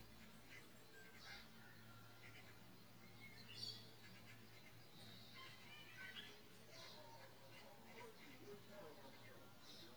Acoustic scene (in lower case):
park